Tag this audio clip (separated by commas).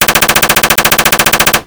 Gunshot, Explosion